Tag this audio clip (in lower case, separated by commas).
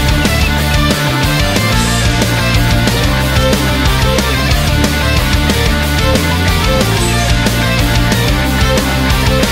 sound effect, music